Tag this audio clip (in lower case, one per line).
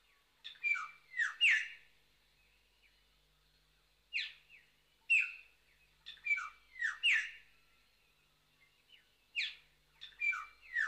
livestock
animal